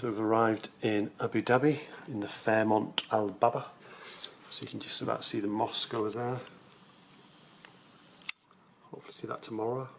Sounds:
speech
outside, urban or man-made

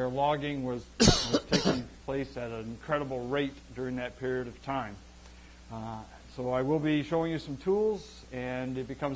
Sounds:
speech

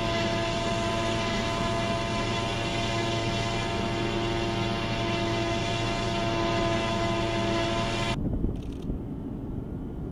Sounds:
outside, rural or natural
vehicle

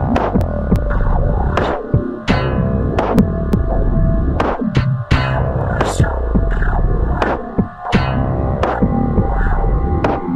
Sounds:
hum

